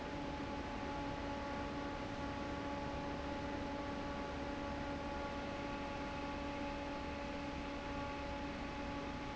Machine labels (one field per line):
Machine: fan